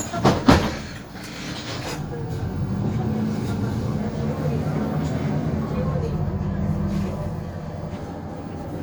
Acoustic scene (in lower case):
bus